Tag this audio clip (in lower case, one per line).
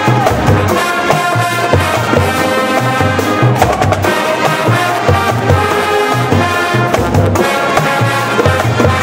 music